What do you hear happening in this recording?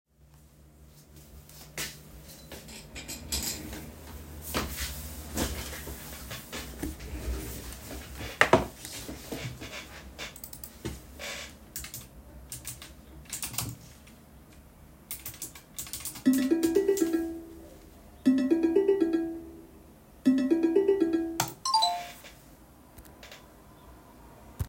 I walk up to the desk and sit down in the chair, then I start typing on the keyboard, then I get a call